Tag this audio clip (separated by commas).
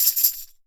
Tambourine, Music, Musical instrument, Percussion